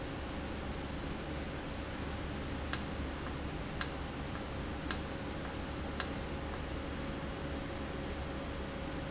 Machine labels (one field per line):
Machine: valve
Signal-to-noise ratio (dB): -6 dB